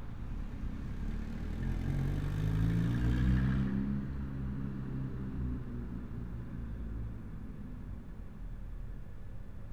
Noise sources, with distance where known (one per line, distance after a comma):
medium-sounding engine, near